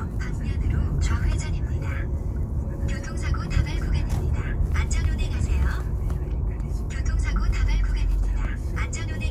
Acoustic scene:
car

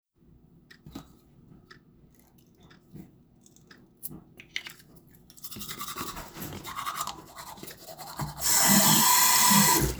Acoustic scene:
restroom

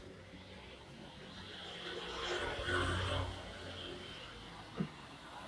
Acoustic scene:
street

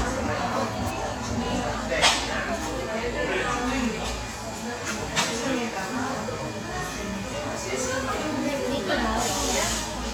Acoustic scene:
cafe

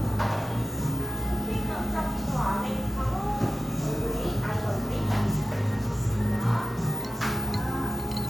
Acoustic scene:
cafe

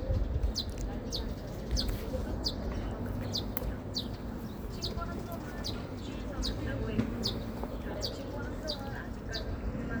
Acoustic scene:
park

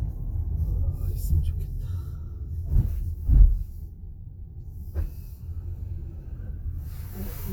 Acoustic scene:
car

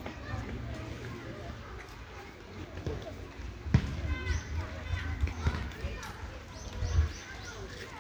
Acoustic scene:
park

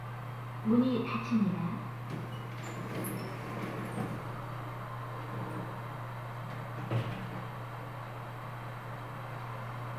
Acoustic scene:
elevator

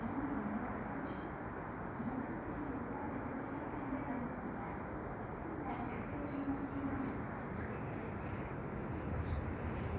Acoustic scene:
subway station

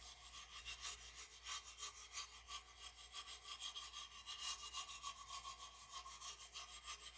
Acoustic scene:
restroom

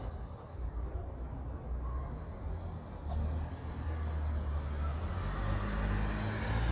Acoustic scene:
residential area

